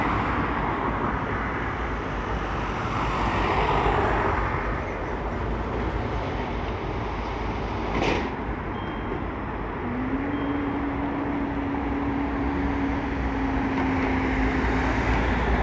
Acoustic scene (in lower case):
street